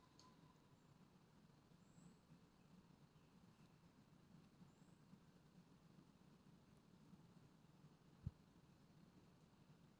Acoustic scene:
park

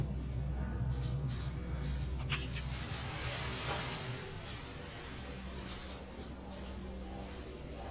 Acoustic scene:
elevator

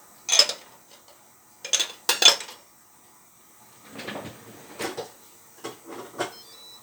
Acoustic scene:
kitchen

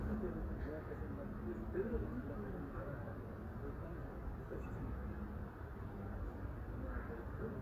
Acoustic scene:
residential area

